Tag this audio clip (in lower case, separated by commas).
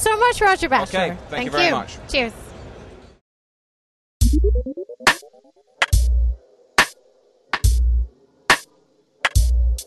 music, speech, inside a large room or hall